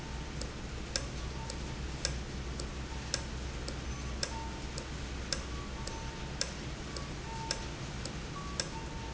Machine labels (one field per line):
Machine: valve